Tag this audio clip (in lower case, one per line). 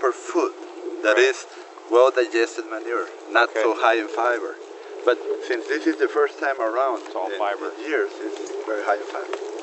speech